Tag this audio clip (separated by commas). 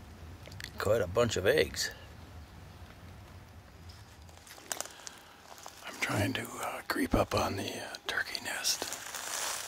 Speech